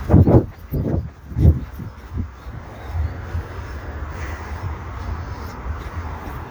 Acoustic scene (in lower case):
park